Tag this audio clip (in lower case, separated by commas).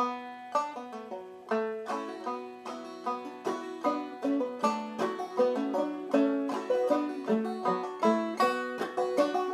playing banjo, banjo, music